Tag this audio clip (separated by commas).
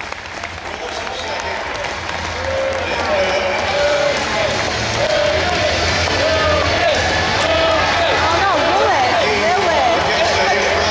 Run, Speech